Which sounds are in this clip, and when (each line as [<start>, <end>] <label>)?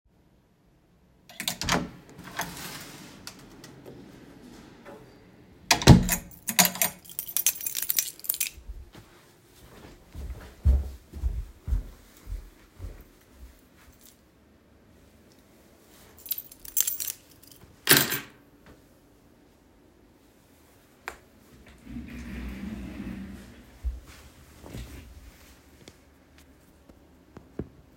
[1.29, 3.67] door
[5.61, 6.46] door
[6.46, 8.60] keys
[10.05, 14.23] footsteps
[16.18, 18.50] keys